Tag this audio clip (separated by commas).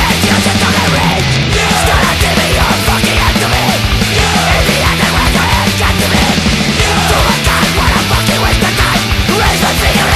Heavy metal, Music